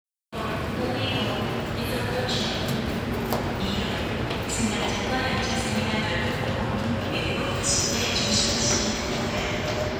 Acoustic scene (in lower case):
subway station